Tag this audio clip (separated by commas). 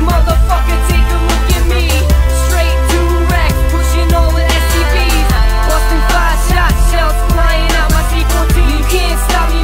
Music